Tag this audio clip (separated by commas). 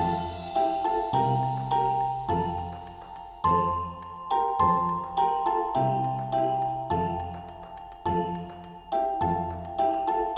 Music, Christmas music, Christian music